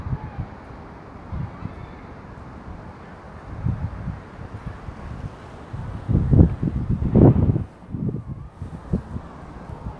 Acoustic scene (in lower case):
residential area